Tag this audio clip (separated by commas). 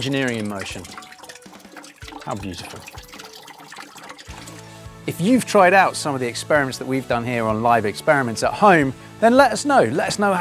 Music, Speech